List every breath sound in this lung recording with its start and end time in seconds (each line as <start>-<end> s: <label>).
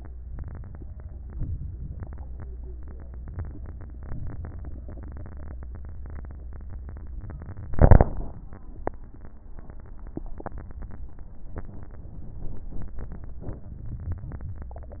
0.30-1.09 s: inhalation
1.28-2.07 s: exhalation
3.24-4.04 s: inhalation
4.05-4.85 s: exhalation